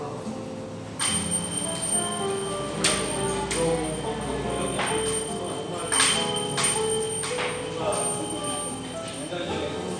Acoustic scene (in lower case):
cafe